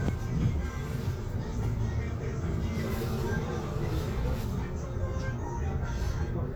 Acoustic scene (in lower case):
bus